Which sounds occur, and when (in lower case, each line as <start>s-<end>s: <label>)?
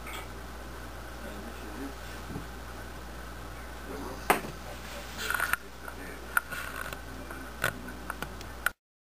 0.0s-8.7s: wind
0.0s-0.2s: generic impact sounds
0.9s-2.0s: male speech
2.2s-2.5s: male speech
3.8s-4.5s: male speech
4.3s-4.4s: generic impact sounds
5.2s-5.5s: generic impact sounds
5.8s-6.8s: male speech
6.4s-6.4s: tick
6.5s-6.9s: generic impact sounds
6.9s-7.0s: tick
7.6s-7.7s: generic impact sounds
8.1s-8.3s: tick
8.4s-8.4s: tick
8.7s-8.7s: tick